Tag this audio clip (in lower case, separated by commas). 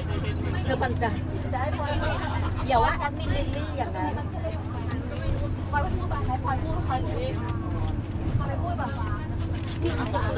speech